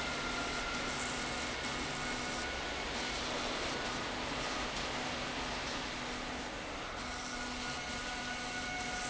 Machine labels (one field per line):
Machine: slide rail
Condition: abnormal